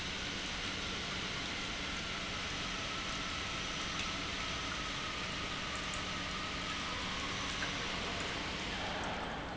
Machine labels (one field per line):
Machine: pump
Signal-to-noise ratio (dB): -6 dB